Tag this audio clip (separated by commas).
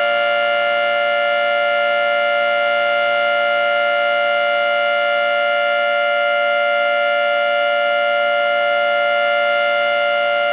Civil defense siren, Siren